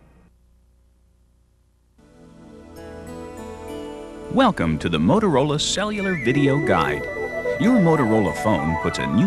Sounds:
music, speech

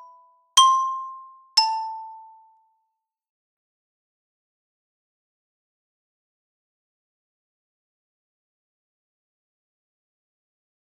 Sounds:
playing glockenspiel

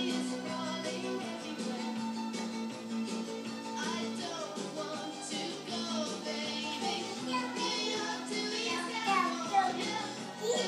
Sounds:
speech, music

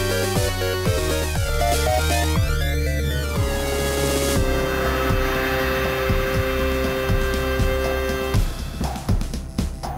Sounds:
music, theme music

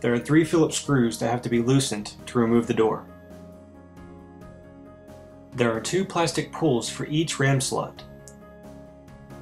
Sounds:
speech, music

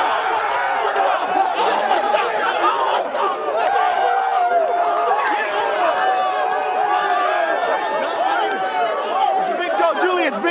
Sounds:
speech

